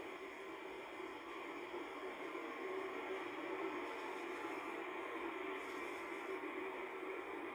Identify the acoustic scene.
car